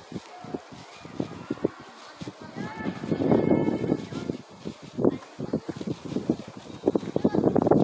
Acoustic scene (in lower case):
residential area